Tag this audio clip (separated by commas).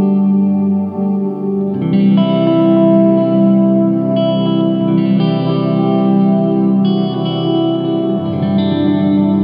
Strum, Guitar, Plucked string instrument, Music, Musical instrument, Electric guitar, playing electric guitar